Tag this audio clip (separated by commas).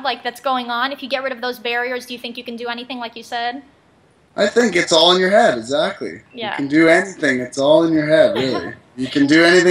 Speech